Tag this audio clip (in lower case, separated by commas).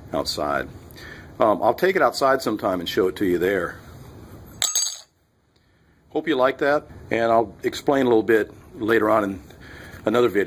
inside a small room, speech